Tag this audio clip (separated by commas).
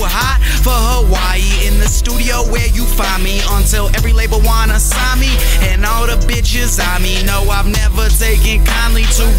Music, Rhythm and blues